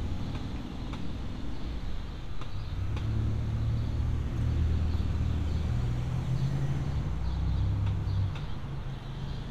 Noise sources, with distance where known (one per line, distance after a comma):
medium-sounding engine